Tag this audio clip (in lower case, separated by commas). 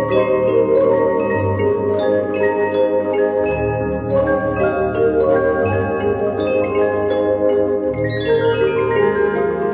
glockenspiel, mallet percussion, marimba